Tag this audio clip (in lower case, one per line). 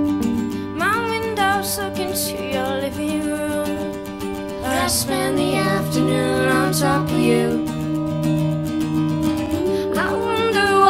music